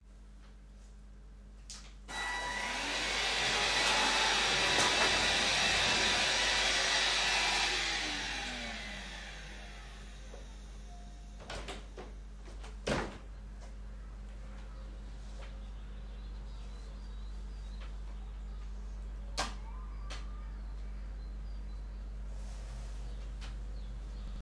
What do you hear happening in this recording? I pressed the vacuum cleaner’s power button to turn it on and I began vacuuming, after that i turned it off. I opened the window and heard birds chirping and children playing outside. Then I adjusted the vacuum cleaner.